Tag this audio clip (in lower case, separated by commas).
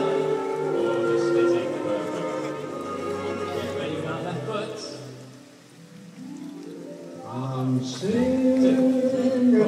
male singing, music, speech